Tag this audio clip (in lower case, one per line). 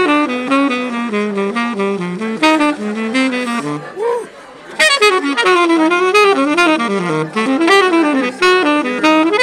woodwind instrument